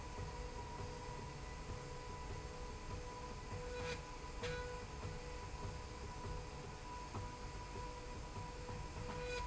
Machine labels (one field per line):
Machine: slide rail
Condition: normal